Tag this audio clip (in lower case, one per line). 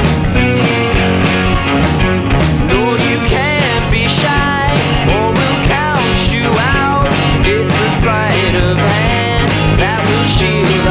music